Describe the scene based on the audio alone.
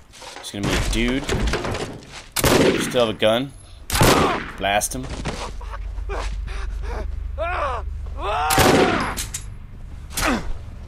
He is speaking, a gun can be head shooting